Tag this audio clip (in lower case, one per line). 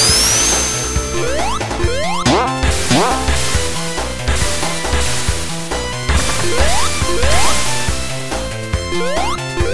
music